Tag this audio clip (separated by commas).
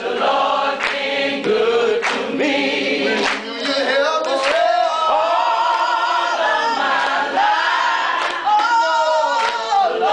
A capella, Singing